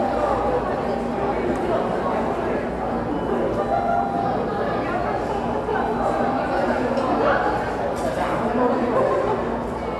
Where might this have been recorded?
in a cafe